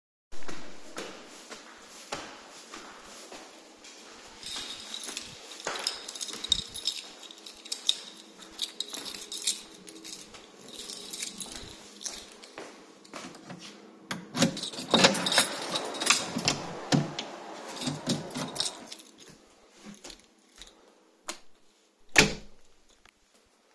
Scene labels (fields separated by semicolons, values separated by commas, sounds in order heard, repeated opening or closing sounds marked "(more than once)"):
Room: hallway; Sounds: footsteps, keys, door (more than once), toilet flushing, light switch